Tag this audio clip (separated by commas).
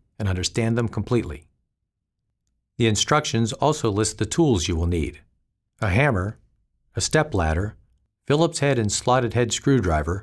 Speech